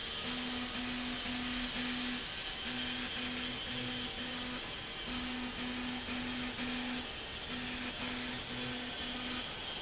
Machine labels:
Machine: slide rail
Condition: abnormal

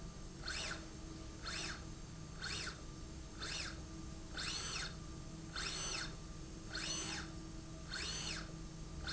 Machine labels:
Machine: slide rail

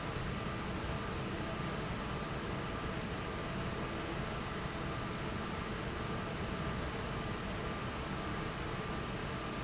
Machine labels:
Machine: fan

